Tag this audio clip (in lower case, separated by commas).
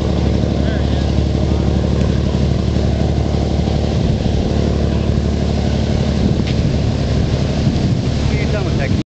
speech, vehicle, speedboat